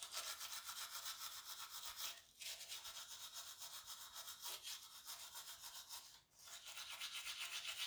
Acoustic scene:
restroom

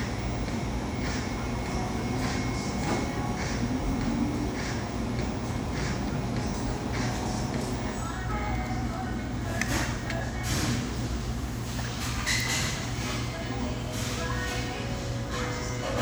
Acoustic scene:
cafe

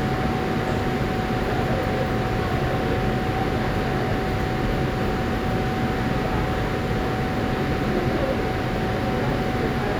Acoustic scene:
subway station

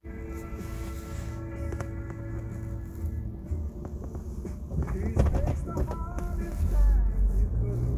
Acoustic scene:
car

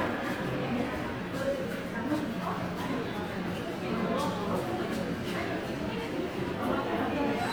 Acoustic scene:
subway station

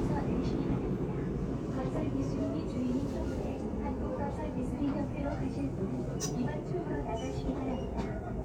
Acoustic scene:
subway train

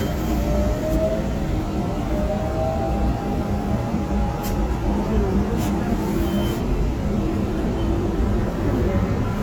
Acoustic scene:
subway train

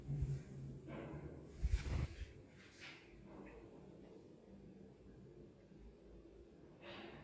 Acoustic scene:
elevator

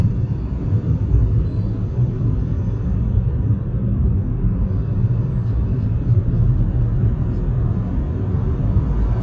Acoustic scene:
car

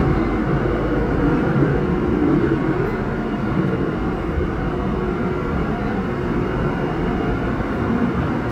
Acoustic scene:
subway train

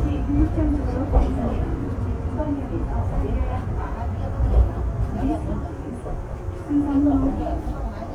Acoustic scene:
subway train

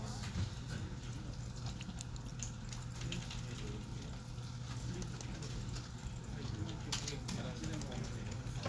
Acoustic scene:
crowded indoor space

